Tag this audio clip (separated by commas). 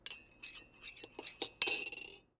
dishes, pots and pans, Domestic sounds, silverware